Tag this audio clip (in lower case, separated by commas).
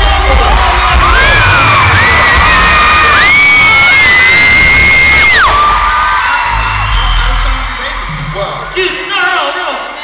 music, speech, male singing